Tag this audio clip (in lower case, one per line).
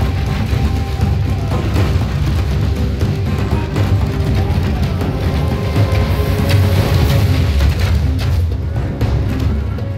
music